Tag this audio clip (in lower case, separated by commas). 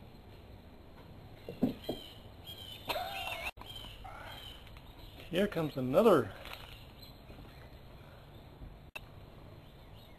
animal, speech